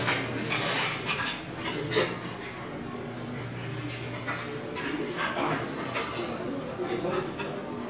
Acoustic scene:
restaurant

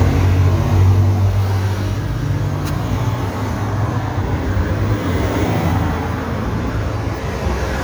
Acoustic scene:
street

